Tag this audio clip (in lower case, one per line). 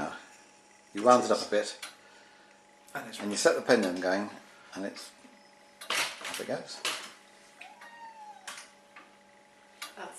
speech